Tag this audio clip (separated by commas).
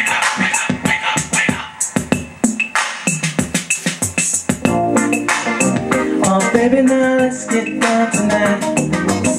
Singing, Drum machine